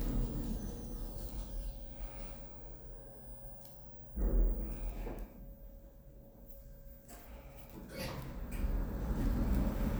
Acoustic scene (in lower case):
elevator